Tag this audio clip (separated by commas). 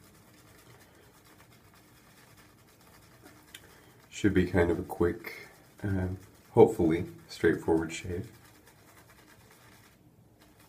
Speech